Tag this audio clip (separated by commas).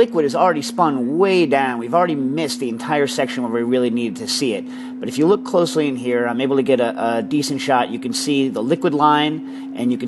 Speech